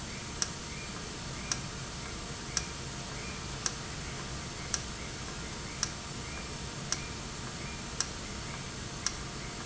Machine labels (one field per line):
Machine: valve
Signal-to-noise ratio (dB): -6 dB